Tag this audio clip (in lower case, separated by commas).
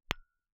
glass, tap